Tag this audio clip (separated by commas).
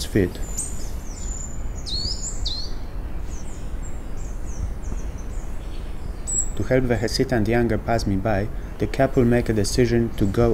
Speech, Insect, Animal